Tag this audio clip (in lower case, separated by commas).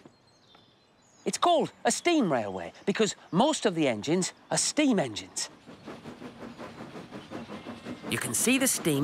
speech